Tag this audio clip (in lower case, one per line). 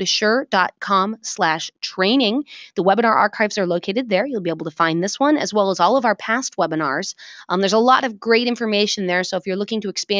speech